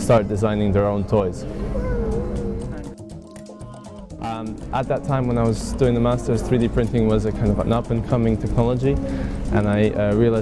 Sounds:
music
speech

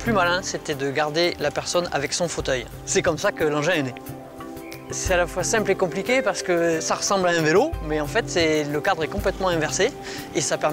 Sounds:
music
speech

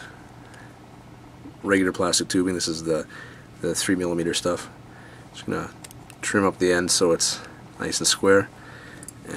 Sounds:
speech

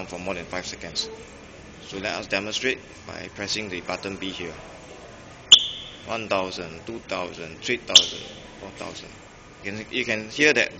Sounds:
speech

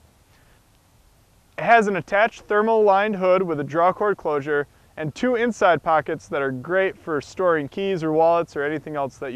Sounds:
speech

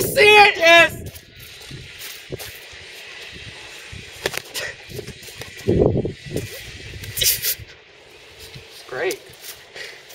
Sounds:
speech

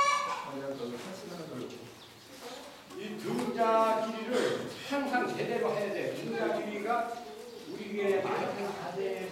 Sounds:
speech

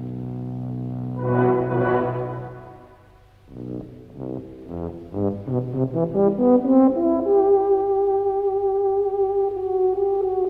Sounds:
music
orchestra
brass instrument
french horn
musical instrument

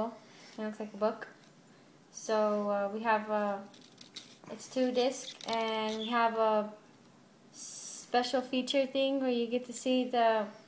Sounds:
speech

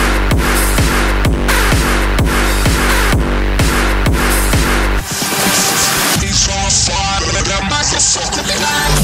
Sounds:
electronic dance music
electronic music
music

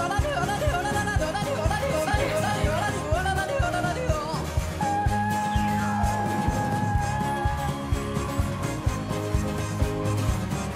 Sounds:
yodelling

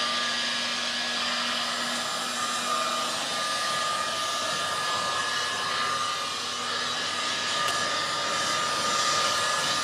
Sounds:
hair dryer

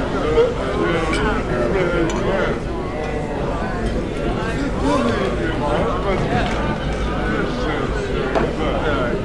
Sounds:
crowd

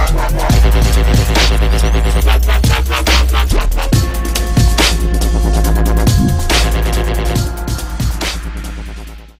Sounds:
electronic music
dubstep
music

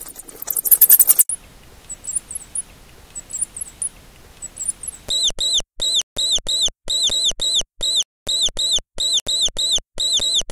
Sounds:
mouse squeaking

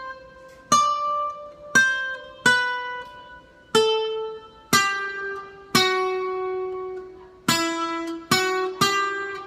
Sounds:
musical instrument
guitar
acoustic guitar
plucked string instrument
music

